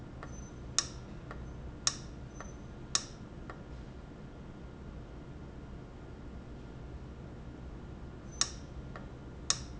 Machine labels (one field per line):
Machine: valve